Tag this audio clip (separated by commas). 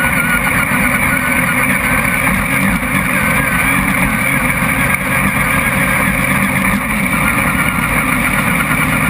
Car, Vehicle